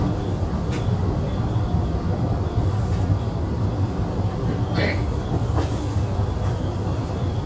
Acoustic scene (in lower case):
subway train